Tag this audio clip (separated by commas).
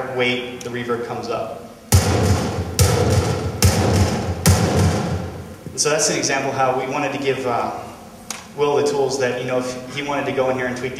Thump